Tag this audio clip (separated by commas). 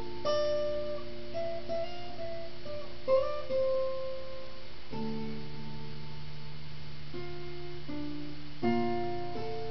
Musical instrument, Guitar, Acoustic guitar, playing acoustic guitar, Music, Plucked string instrument